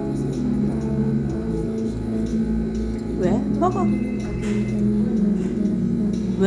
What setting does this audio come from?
restaurant